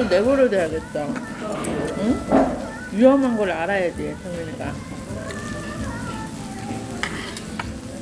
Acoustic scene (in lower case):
restaurant